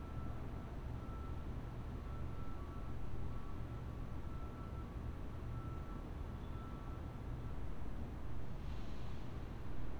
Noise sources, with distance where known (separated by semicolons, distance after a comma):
reverse beeper, far